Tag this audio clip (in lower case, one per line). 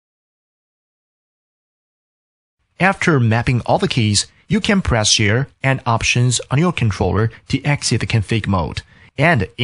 speech